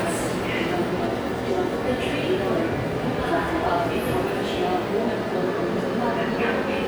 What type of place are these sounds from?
subway station